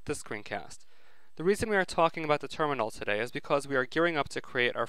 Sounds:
speech

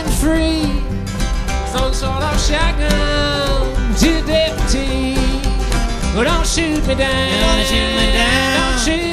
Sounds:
music

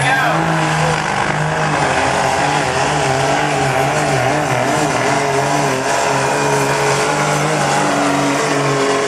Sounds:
truck
vehicle

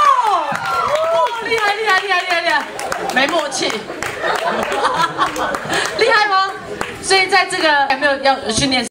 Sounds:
speech

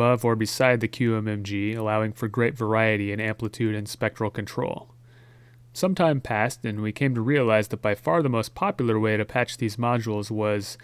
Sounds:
speech

